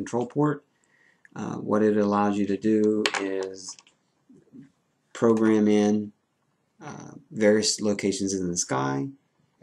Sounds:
speech

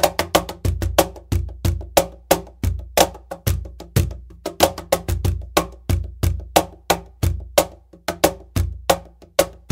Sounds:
wood block
music
percussion

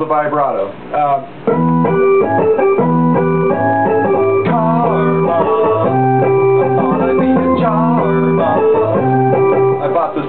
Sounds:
speech
music

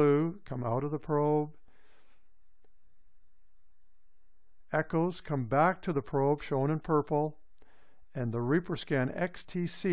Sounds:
speech

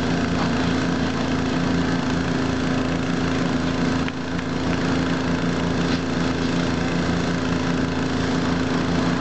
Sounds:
vehicle

